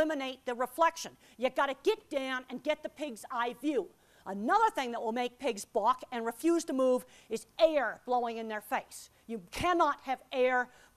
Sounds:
Speech

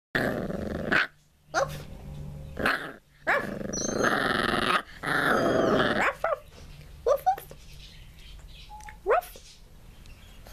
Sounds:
inside a small room, Domestic animals, cat growling, Animal, Growling, Dog, Chirp

